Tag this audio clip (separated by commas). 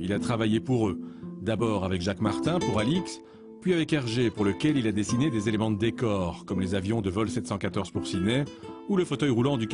Music, Speech